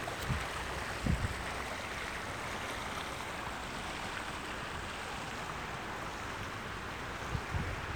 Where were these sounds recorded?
in a park